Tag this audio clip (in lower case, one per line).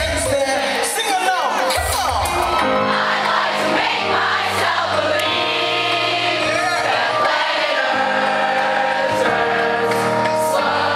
music